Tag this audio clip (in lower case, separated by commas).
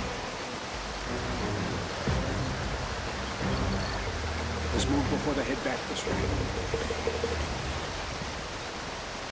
waterfall, speech, music